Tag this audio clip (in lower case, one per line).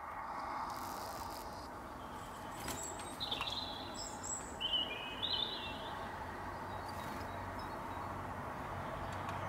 magpie calling